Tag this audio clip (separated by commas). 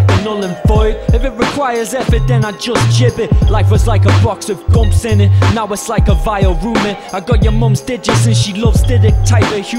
Music